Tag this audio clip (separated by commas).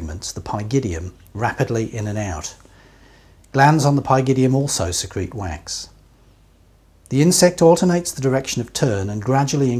Speech